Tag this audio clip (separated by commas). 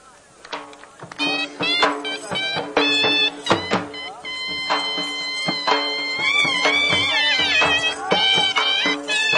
Music, Animal, Speech